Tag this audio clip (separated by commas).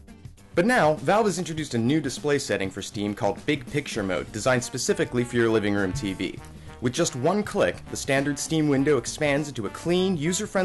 Music, Speech